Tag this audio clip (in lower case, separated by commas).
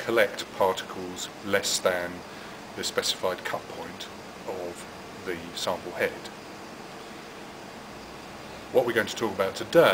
speech